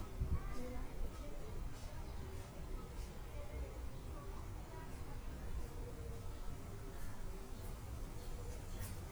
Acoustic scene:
park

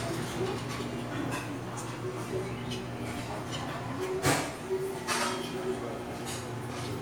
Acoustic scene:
restaurant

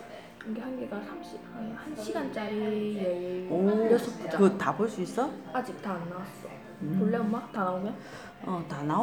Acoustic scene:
crowded indoor space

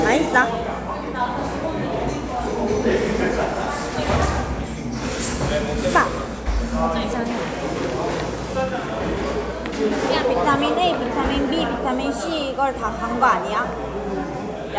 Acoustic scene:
cafe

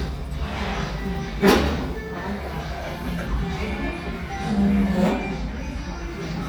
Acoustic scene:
restaurant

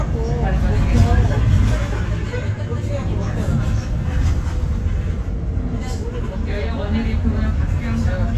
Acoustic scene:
bus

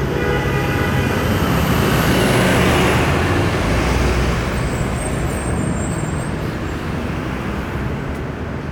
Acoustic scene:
street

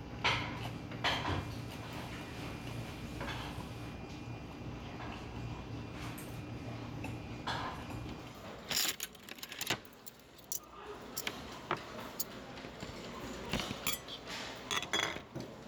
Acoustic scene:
restaurant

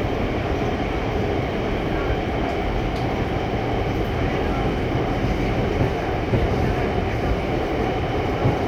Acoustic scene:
subway train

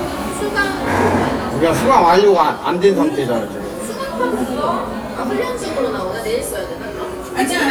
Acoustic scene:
cafe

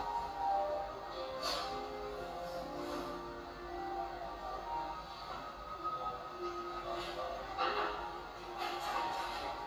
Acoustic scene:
cafe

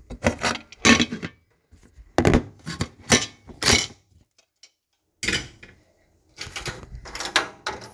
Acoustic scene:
kitchen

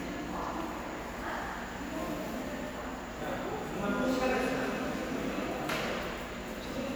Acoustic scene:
subway station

